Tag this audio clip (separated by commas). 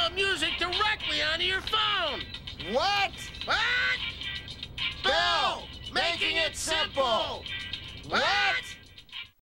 Speech, Music